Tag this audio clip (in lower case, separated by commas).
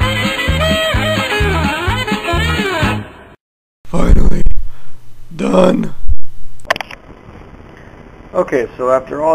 music, speech